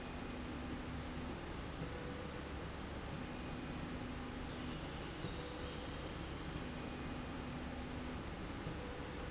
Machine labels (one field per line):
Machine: slide rail